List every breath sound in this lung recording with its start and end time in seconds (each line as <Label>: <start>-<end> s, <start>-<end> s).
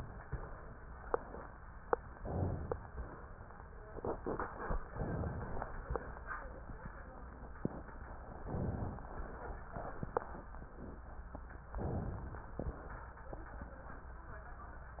Inhalation: 2.13-2.96 s, 4.97-5.81 s, 8.46-9.30 s, 11.80-12.64 s